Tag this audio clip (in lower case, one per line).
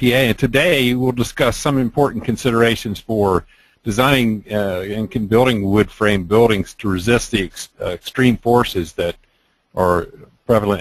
speech